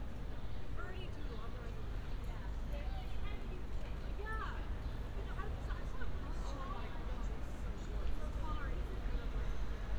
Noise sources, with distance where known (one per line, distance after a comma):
person or small group talking